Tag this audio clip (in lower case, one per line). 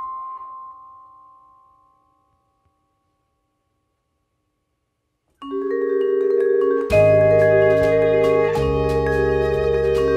music